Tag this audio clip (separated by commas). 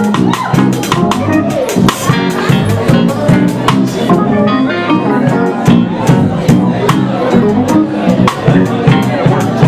Speech, Bellow, Whoop, Music